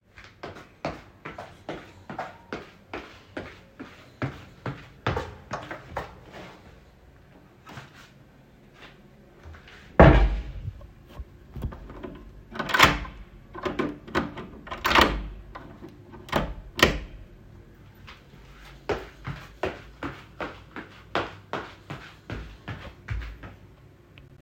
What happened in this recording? walking through the door, closing it, walking again